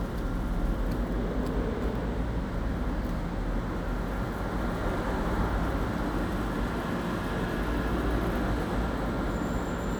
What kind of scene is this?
residential area